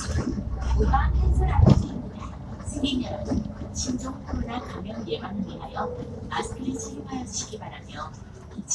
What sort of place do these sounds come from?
bus